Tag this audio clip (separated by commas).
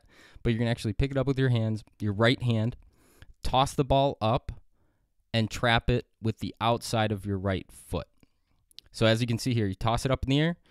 Speech